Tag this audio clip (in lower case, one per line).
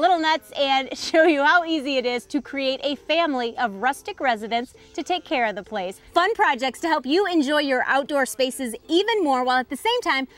speech